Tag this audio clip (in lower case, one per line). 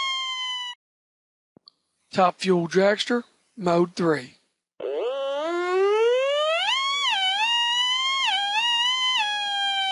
speech